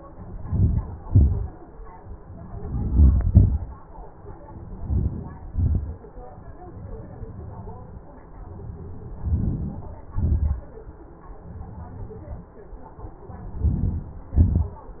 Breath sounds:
Inhalation: 0.40-1.12 s, 2.39-3.38 s, 4.57-5.56 s, 8.90-9.87 s, 13.24-14.28 s
Exhalation: 1.10-1.71 s, 3.45-4.33 s, 5.54-6.17 s, 9.94-10.72 s, 14.36-15.00 s

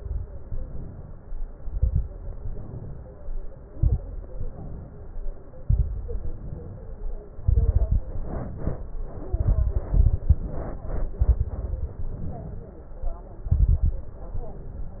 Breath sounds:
Inhalation: 0.47-1.44 s, 2.24-3.21 s, 4.31-5.07 s, 6.18-7.24 s, 8.13-9.20 s, 10.47-11.16 s, 11.97-12.79 s, 14.12-15.00 s
Exhalation: 0.00-0.43 s, 1.60-2.09 s, 3.71-4.03 s, 5.53-5.96 s, 7.39-8.05 s, 9.29-10.39 s, 11.19-11.57 s, 13.47-14.04 s
Crackles: 0.00-0.43 s, 1.60-2.09 s, 3.71-4.03 s, 5.53-5.96 s, 7.39-8.05 s, 9.29-10.39 s, 11.19-11.57 s, 13.47-14.04 s

